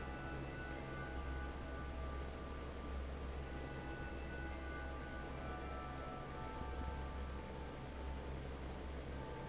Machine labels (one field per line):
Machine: fan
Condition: normal